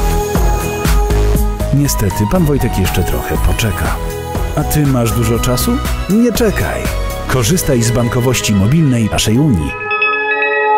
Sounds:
speech, music

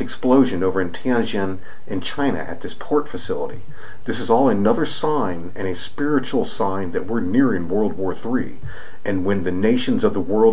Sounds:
speech

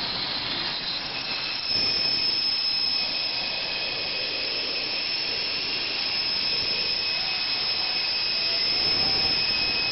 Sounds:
inside a small room, wood

